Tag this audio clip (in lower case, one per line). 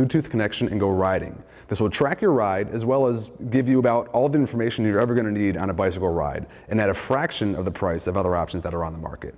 speech